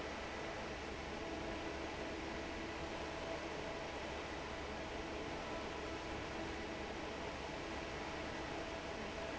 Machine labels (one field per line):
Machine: fan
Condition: normal